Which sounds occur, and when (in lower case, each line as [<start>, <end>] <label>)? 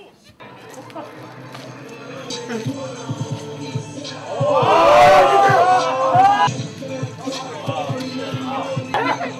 [0.00, 9.35] background noise
[1.95, 9.35] male singing
[1.97, 9.35] music
[4.01, 6.62] crowd
[8.83, 9.35] female speech